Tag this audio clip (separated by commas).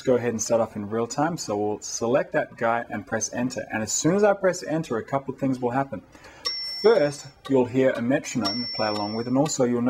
Speech